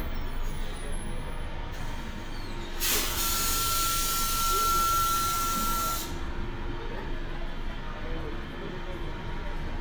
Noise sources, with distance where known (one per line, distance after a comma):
large-sounding engine, near